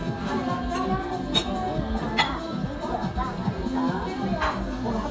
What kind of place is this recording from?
restaurant